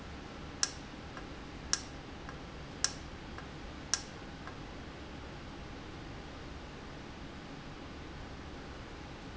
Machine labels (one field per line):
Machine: valve